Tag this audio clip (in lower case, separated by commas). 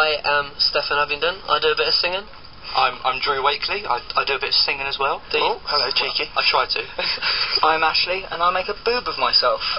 radio, speech